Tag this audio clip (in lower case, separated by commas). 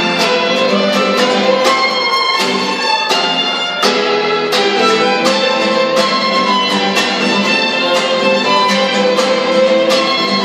music, musical instrument, violin, bowed string instrument, guitar